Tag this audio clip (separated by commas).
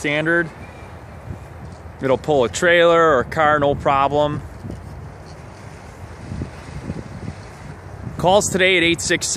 Speech